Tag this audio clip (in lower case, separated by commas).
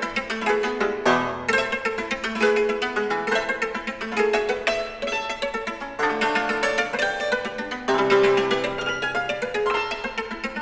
musical instrument, music